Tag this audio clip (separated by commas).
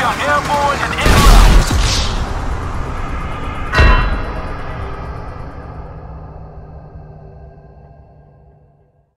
Car, Vehicle, Speech, Car passing by